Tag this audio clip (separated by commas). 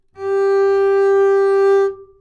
Musical instrument, Bowed string instrument, Music